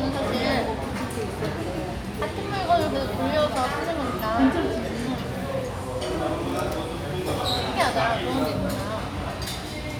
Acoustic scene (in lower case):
restaurant